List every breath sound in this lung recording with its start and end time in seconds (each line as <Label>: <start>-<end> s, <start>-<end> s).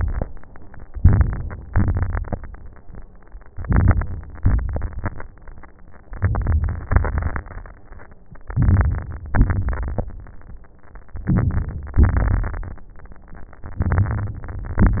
Inhalation: 0.93-1.63 s, 3.55-4.37 s, 6.02-6.86 s, 8.46-9.27 s, 11.23-11.99 s, 13.83-14.82 s
Exhalation: 1.67-2.37 s, 4.39-5.26 s, 6.90-7.46 s, 9.31-10.07 s, 11.99-12.90 s, 14.88-15.00 s
Crackles: 0.93-1.63 s, 1.67-2.37 s, 3.55-4.37 s, 4.39-5.26 s, 6.02-6.86 s, 6.90-7.46 s, 8.46-9.27 s, 9.31-10.07 s, 11.23-11.99 s, 11.99-12.90 s, 13.83-14.82 s, 14.88-15.00 s